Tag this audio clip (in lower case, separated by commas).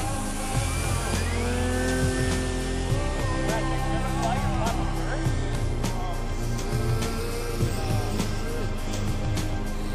speech, music